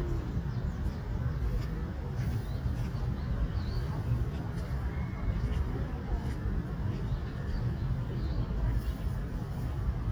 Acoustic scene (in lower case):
park